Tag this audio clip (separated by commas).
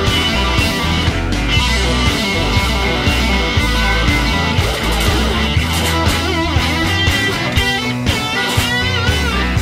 Music, Guitar